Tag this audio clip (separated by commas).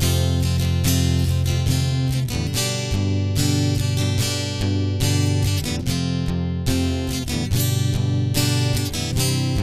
Guitar, Musical instrument, Acoustic guitar, Music, Plucked string instrument, Strum, playing acoustic guitar